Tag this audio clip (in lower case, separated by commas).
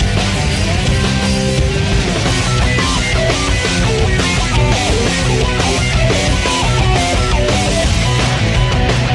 music, exciting music